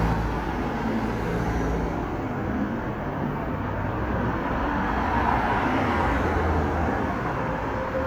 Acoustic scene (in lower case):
street